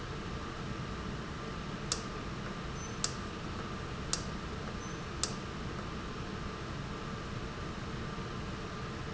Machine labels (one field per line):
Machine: valve